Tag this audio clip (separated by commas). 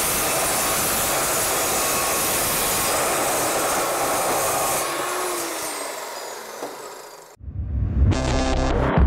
Music